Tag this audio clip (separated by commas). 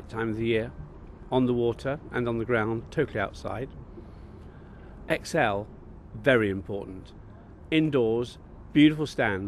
Speech